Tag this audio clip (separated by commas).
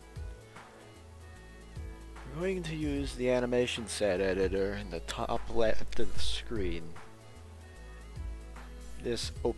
Speech, Music